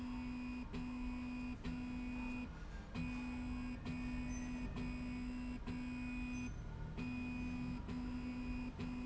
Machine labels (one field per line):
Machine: slide rail